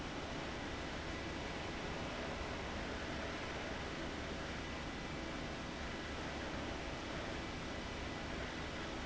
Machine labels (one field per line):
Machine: fan